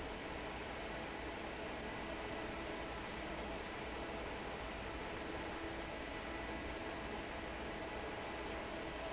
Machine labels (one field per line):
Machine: fan